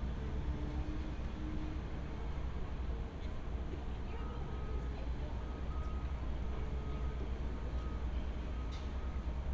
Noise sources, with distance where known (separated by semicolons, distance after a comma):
large-sounding engine; reverse beeper; person or small group talking